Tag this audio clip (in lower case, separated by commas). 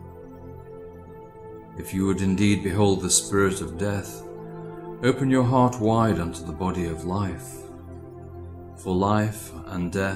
speech, narration, music